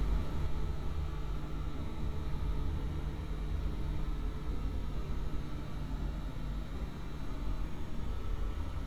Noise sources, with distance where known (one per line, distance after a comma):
medium-sounding engine, far